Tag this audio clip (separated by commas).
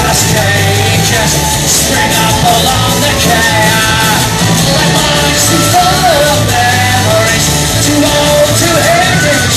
inside a large room or hall, Music, Singing